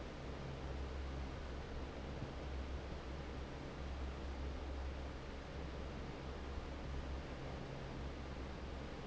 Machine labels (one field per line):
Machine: fan